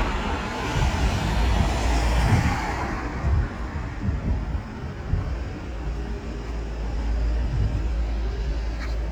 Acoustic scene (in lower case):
street